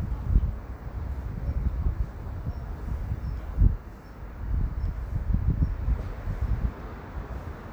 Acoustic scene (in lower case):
residential area